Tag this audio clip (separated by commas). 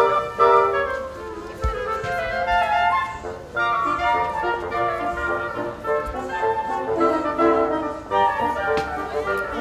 Speech, Music